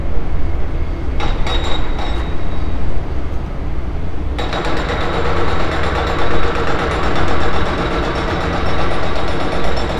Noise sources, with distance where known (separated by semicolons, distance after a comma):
jackhammer, near